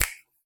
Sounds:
finger snapping, hands

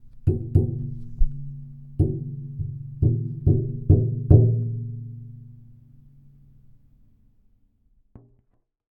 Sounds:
tap

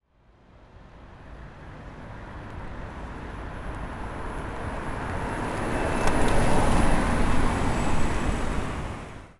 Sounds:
car passing by, vehicle, motor vehicle (road), car

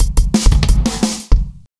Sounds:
music, drum kit, percussion, drum, musical instrument

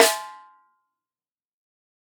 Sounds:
snare drum, drum, percussion, music, musical instrument

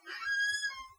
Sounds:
squeak

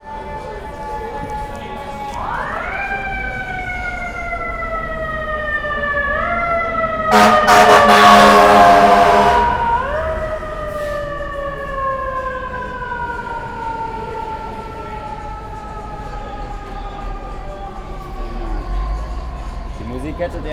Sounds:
motor vehicle (road), alarm, vehicle, siren

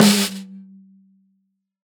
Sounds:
snare drum, percussion, drum, musical instrument, music

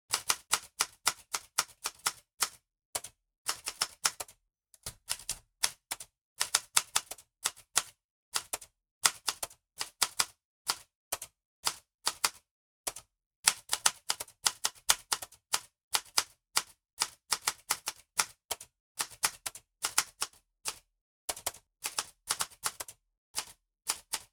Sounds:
home sounds, typing, typewriter

